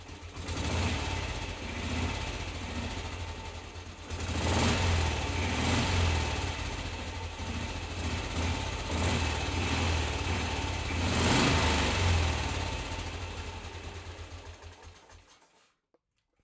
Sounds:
motorcycle
motor vehicle (road)
vehicle

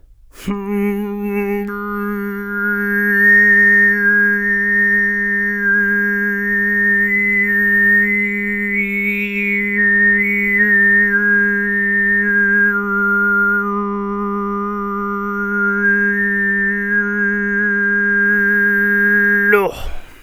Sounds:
human voice
singing

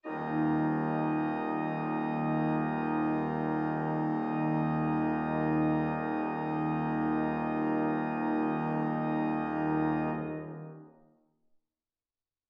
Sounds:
keyboard (musical)
music
musical instrument
organ

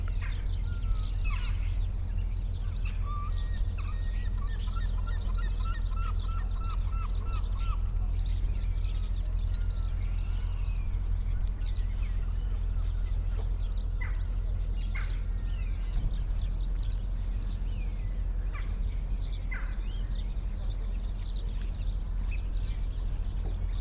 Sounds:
seagull
bird
animal
wild animals

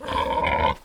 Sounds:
livestock
animal

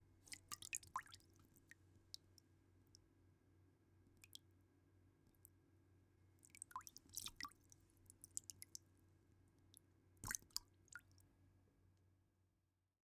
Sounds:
rain
trickle
water
liquid
raindrop
pour
drip

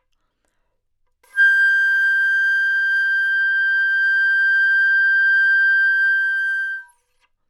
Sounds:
woodwind instrument
music
musical instrument

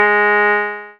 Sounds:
musical instrument
keyboard (musical)
music
piano

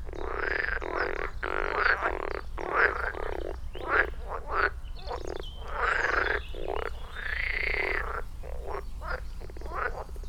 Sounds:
animal
frog
wild animals

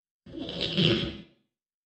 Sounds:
squeak

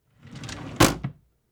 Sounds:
wood
drawer open or close
home sounds

